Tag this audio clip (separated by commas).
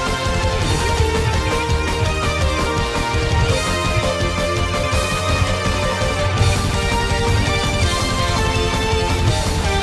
Musical instrument, Bass guitar, Guitar, Music, Plucked string instrument